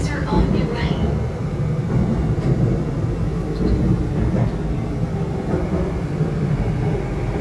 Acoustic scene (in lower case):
subway train